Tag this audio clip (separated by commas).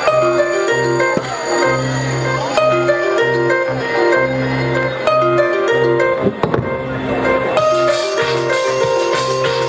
Speech, Music